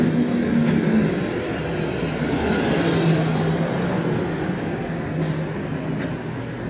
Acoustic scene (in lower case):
street